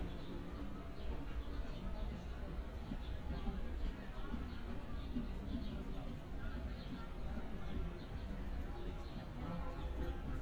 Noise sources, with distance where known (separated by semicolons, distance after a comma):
music from an unclear source; person or small group talking, far